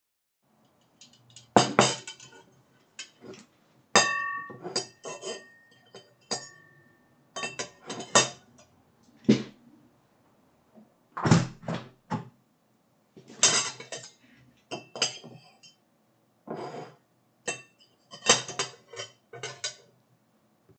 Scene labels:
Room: office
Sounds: cutlery and dishes, wardrobe or drawer, window

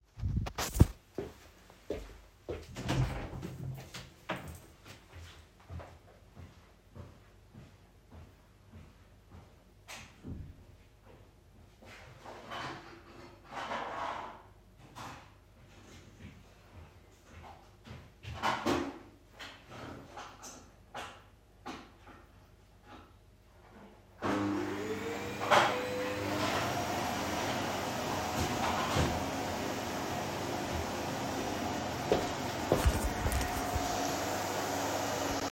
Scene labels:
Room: hallway, bedroom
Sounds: footsteps, door, vacuum cleaner

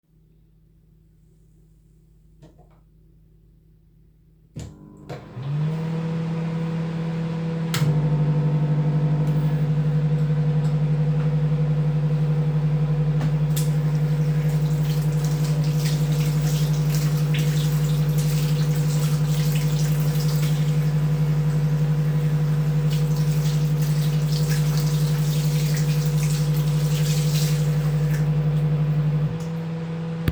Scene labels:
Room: kitchen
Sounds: microwave, running water

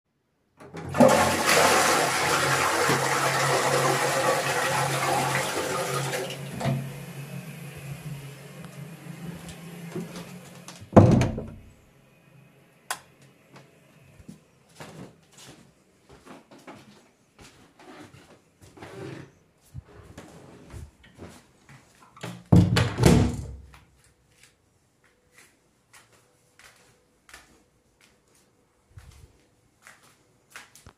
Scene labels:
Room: lavatory, hallway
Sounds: toilet flushing, footsteps, door (more than once), light switch

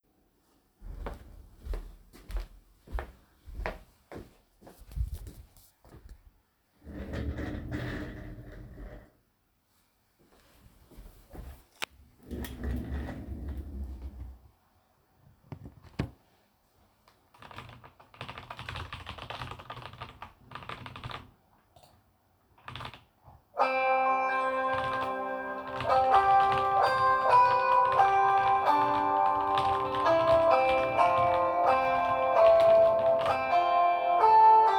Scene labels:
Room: office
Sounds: footsteps, keyboard typing, phone ringing

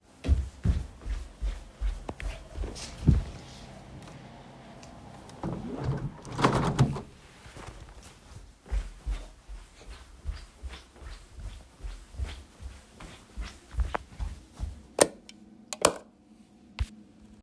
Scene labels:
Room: bedroom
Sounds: footsteps, window, light switch

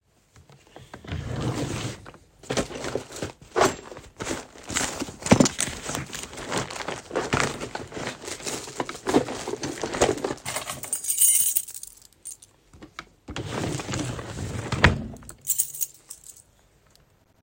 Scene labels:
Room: bedroom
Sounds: wardrobe or drawer (more than once), keys

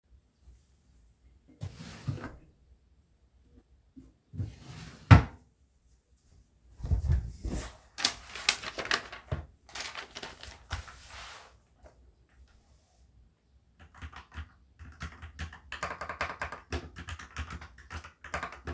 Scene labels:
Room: bedroom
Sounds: wardrobe or drawer (more than once), keyboard typing

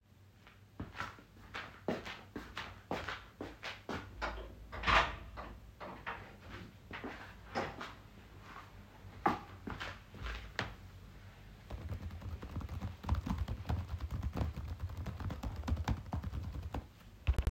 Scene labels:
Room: bedroom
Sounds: footsteps, door, keyboard typing

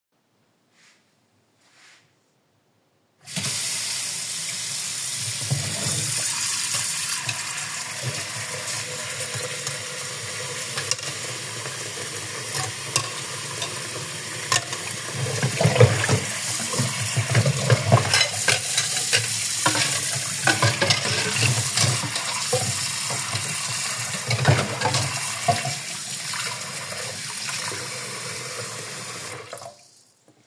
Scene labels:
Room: kitchen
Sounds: running water, cutlery and dishes

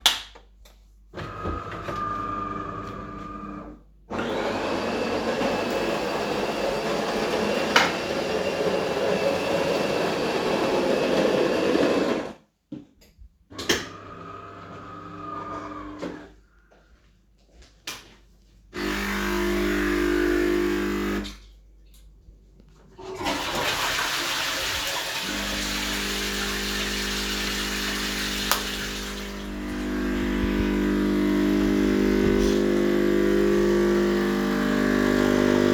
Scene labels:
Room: kitchen, lavatory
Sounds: light switch, coffee machine, footsteps, toilet flushing

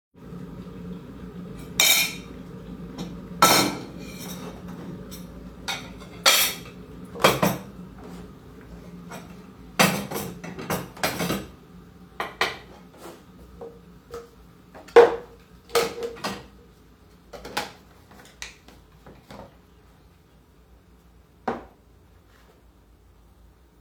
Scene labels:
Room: kitchen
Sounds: cutlery and dishes

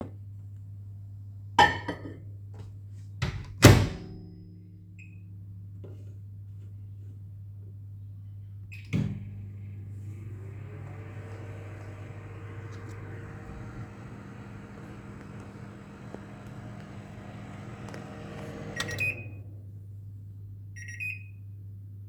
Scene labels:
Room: kitchen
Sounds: cutlery and dishes, microwave

